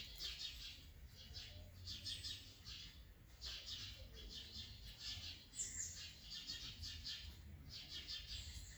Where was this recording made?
in a park